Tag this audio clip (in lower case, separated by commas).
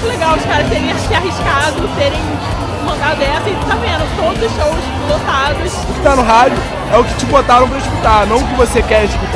speech, music